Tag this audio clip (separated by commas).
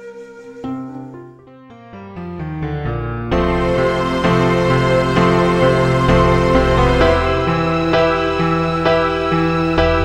Background music